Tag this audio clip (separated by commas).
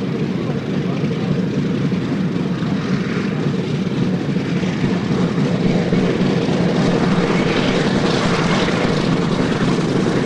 airplane flyby